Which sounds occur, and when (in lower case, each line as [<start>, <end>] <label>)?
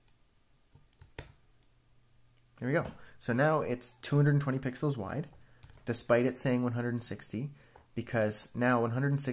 [0.00, 9.32] background noise
[0.05, 0.11] clicking
[0.72, 0.79] clicking
[0.94, 1.05] clicking
[1.19, 1.35] computer keyboard
[1.60, 1.67] clicking
[2.38, 2.43] clicking
[2.58, 2.89] male speech
[2.83, 2.92] computer keyboard
[2.96, 3.18] breathing
[3.22, 3.95] male speech
[4.06, 5.32] male speech
[5.22, 5.46] clicking
[5.63, 5.78] clicking
[5.88, 7.49] male speech
[7.54, 7.85] breathing
[7.76, 7.85] generic impact sounds
[7.96, 9.32] male speech
[8.10, 8.19] clicking
[9.06, 9.19] clicking